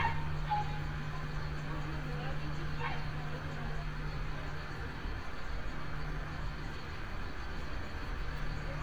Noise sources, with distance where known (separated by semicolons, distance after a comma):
dog barking or whining, far